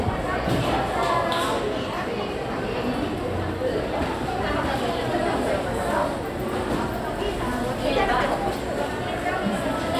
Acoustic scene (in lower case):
crowded indoor space